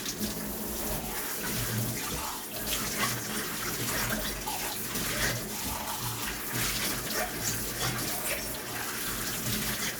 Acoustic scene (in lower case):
kitchen